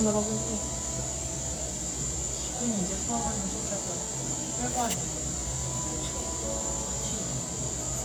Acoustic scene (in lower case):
cafe